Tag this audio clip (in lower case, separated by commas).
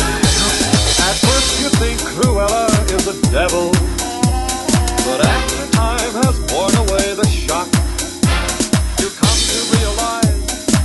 music, exciting music